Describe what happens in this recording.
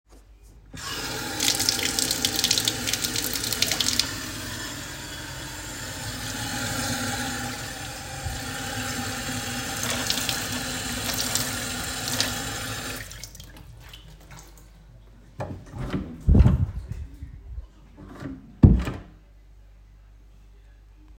I turn on the tap, watter is running continuously, i open and close the door a couple of times, then I wash my hands.